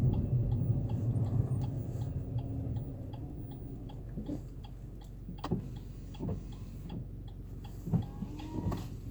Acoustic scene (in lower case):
car